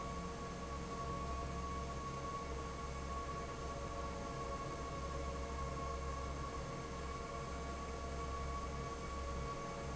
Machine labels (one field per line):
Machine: fan